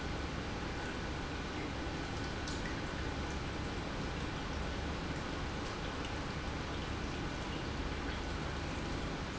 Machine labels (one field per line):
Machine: pump